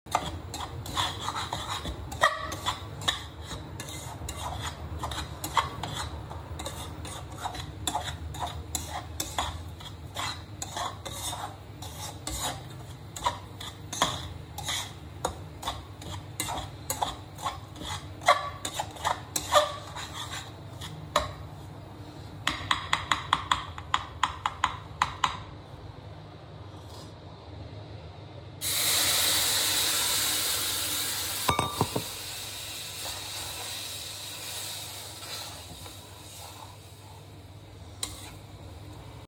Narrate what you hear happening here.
I was making breakfast.